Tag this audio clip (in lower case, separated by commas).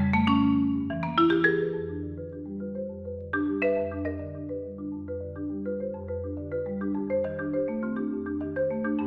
xylophone, glockenspiel, mallet percussion